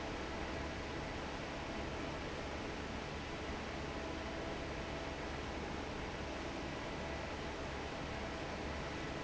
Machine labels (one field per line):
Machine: fan